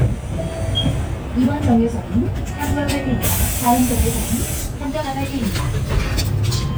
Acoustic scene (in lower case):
bus